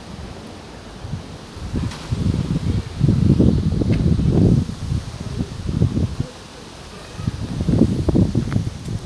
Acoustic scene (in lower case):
residential area